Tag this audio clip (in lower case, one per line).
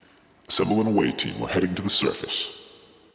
male speech
human voice
speech